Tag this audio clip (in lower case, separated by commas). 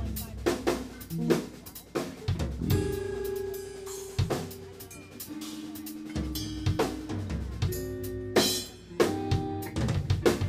music, musical instrument, bass drum, drum, drum kit